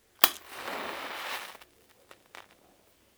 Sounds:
fire

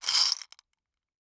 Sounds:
glass

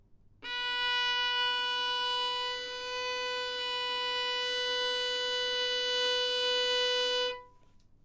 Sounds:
bowed string instrument, music, musical instrument

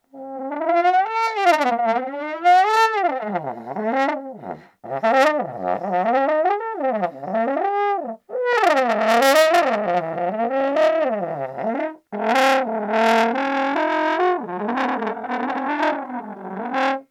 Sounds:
brass instrument, musical instrument, music

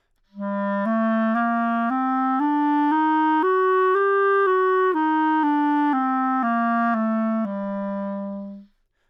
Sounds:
music, woodwind instrument, musical instrument

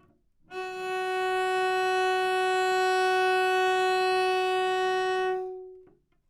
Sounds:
bowed string instrument, musical instrument, music

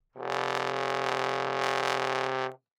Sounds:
musical instrument, brass instrument, music

